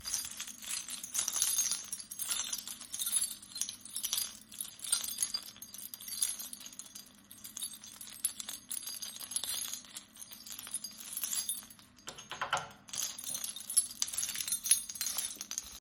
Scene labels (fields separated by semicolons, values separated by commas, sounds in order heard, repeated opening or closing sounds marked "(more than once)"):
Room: hallway; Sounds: keys, door